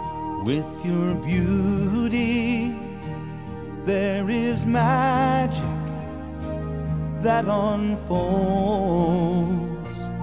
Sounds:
music

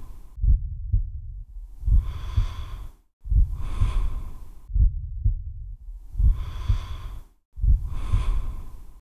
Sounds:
gasp, snort

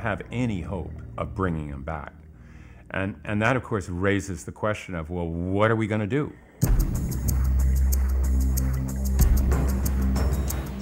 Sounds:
music, speech

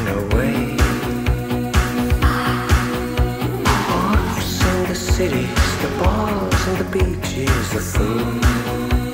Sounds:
music of asia, music

